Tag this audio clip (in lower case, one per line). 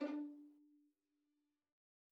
music
musical instrument
bowed string instrument